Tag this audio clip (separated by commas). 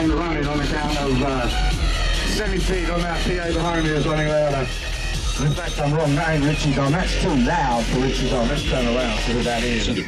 Speech, Music